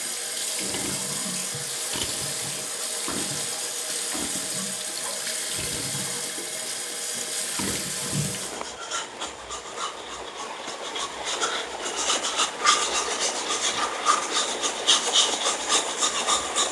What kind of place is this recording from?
restroom